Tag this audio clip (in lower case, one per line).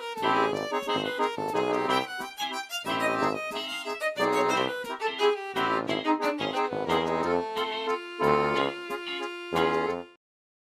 music